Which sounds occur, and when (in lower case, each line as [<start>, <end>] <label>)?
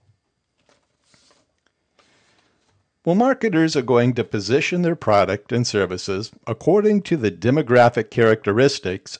[0.00, 9.15] mechanisms
[0.58, 0.88] generic impact sounds
[1.01, 1.44] breathing
[1.11, 1.17] generic impact sounds
[1.28, 1.41] generic impact sounds
[1.60, 1.71] tick
[1.98, 2.02] generic impact sounds
[1.98, 2.72] breathing
[2.39, 2.51] generic impact sounds
[2.62, 2.73] generic impact sounds
[3.05, 5.42] man speaking
[5.50, 6.36] man speaking
[6.46, 9.15] man speaking